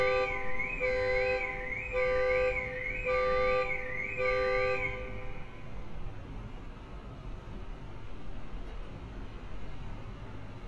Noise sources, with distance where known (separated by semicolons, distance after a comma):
car alarm, near